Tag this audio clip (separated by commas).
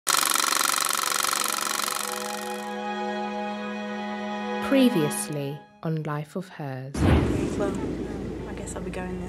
Speech, Music